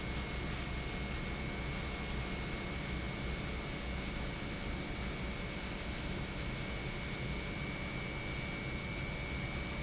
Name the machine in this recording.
pump